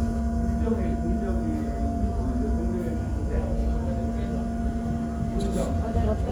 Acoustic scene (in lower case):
subway station